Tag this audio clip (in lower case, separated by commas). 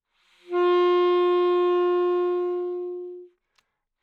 music, woodwind instrument, musical instrument